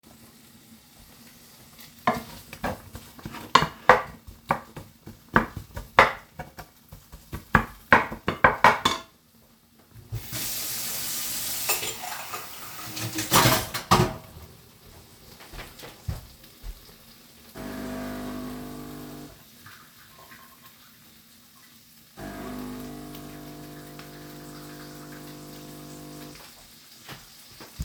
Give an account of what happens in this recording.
I stirred the meat frying in a pan with a wooden spoon and broke it into smaller pieces. Then I turned on the tap and washed a cup. I started the coffee machine.